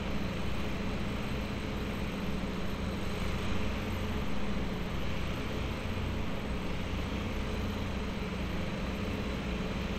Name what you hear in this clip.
small-sounding engine